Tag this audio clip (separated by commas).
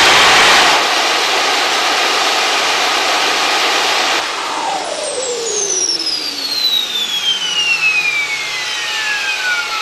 Engine